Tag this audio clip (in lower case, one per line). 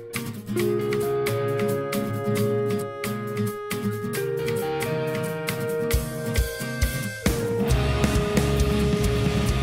rhythm and blues
music